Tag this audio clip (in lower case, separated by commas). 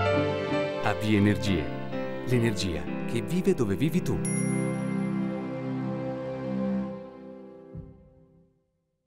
speech, music